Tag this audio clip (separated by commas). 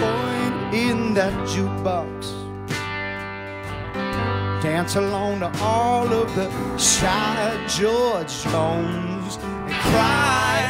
Music